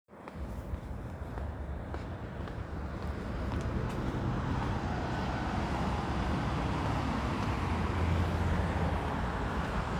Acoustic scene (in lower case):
residential area